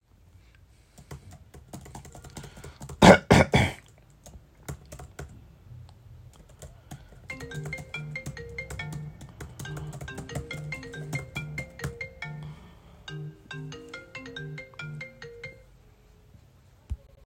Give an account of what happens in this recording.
I coughed while I was typing on the keyboard, then my phone rang.